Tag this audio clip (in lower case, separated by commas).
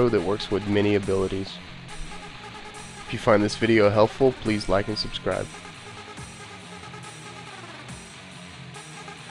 music, speech